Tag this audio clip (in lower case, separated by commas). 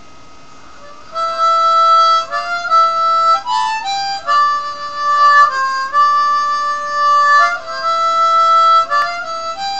playing harmonica